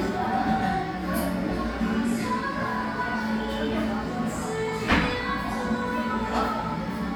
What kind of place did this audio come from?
crowded indoor space